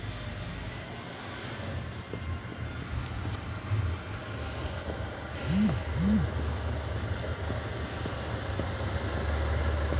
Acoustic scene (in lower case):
residential area